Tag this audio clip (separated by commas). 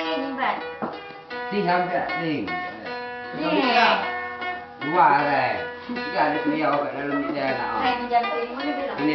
Music, Speech